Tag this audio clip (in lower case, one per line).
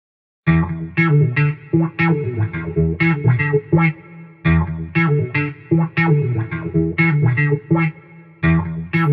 music